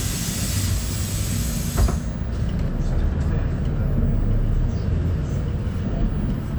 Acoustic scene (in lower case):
bus